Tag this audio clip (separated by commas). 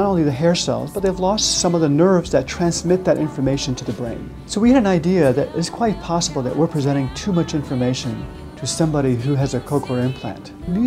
Music, Speech